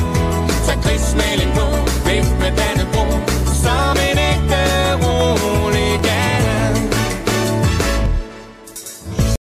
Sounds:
music

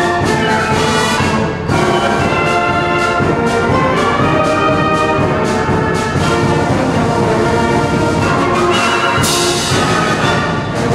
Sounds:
music, orchestra, classical music

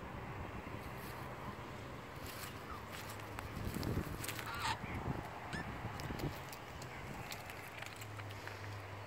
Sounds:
magpie calling

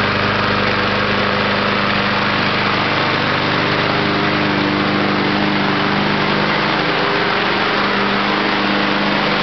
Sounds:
engine, lawn mowing, lawn mower

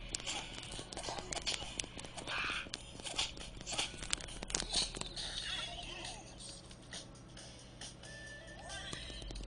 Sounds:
music, speech

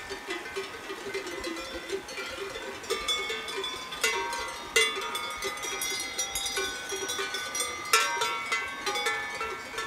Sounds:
bovinae cowbell

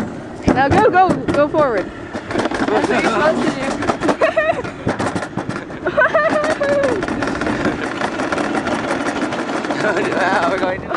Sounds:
speech, outside, rural or natural

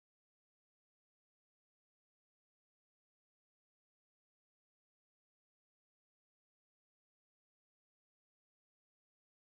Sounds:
chimpanzee pant-hooting

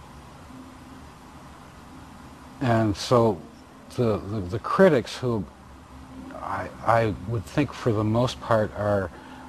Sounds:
speech, music

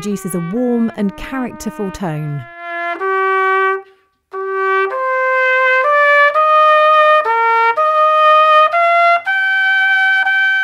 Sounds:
playing cornet

